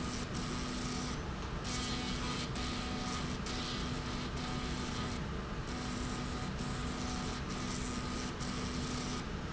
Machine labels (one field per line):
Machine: slide rail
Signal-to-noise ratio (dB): -6 dB